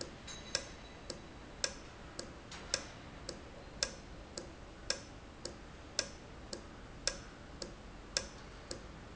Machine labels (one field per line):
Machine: valve